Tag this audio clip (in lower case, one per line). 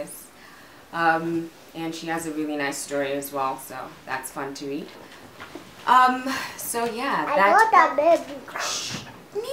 kid speaking